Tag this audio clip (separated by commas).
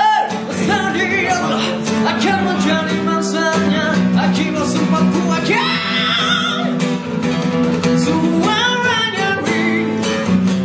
Music